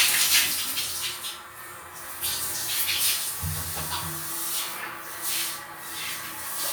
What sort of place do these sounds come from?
restroom